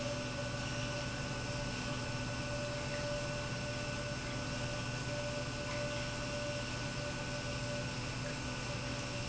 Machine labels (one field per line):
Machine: pump